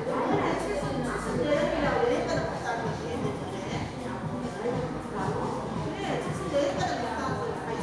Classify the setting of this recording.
crowded indoor space